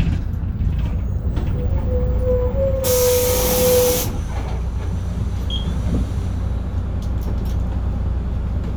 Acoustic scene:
bus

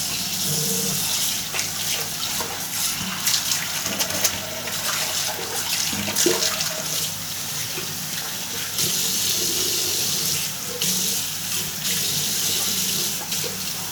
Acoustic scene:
restroom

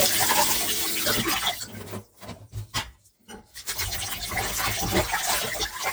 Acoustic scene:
kitchen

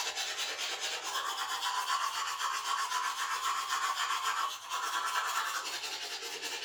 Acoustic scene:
restroom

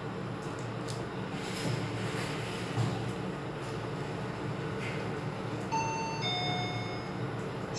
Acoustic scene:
elevator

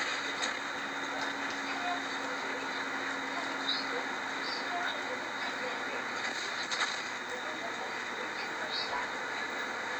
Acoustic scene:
bus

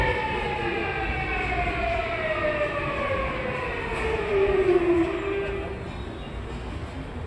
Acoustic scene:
subway station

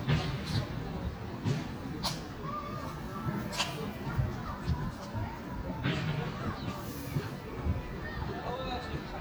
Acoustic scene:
residential area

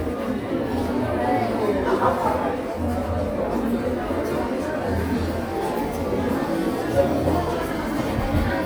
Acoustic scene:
crowded indoor space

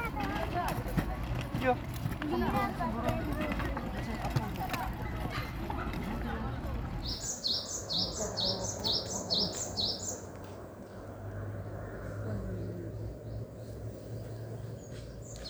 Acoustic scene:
park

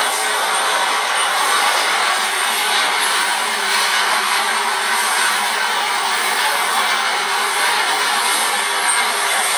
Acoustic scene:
subway train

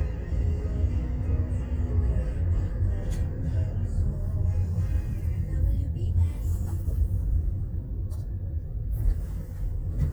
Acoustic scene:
car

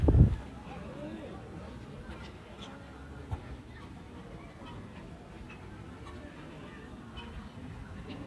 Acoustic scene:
park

